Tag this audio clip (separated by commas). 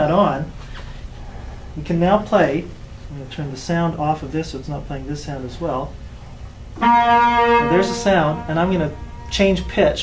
Speech